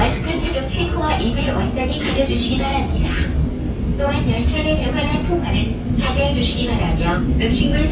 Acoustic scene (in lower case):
subway train